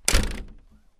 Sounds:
door
home sounds
slam

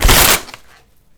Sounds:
tearing

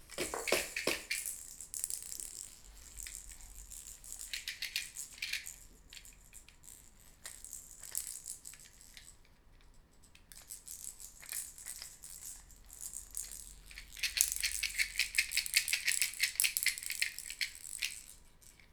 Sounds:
music
rattle (instrument)
musical instrument
rattle
percussion

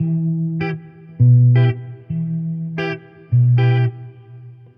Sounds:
electric guitar
musical instrument
plucked string instrument
music
guitar

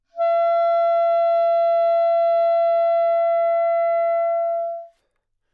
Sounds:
woodwind instrument
musical instrument
music

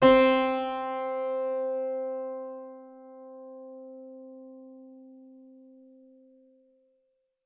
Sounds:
keyboard (musical)
music
musical instrument

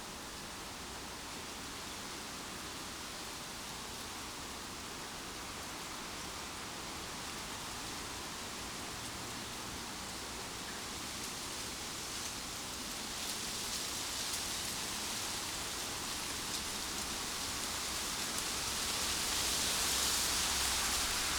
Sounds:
wind

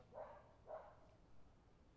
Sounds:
animal
dog
domestic animals

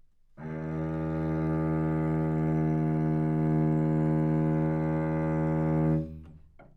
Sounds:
bowed string instrument
musical instrument
music

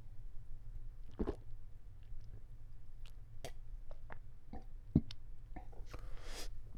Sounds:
liquid

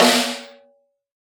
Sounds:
musical instrument
snare drum
percussion
music
drum

